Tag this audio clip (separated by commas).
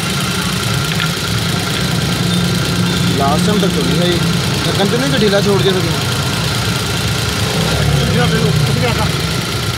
Medium engine (mid frequency), Engine, Speech, Vehicle, Car